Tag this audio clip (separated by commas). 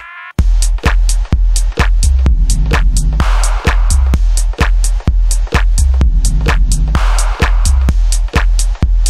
Music